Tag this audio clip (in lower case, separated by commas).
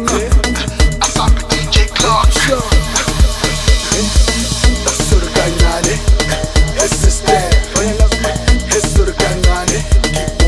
music, speech